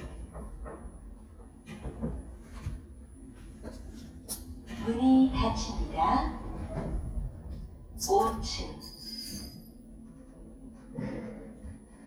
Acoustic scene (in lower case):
elevator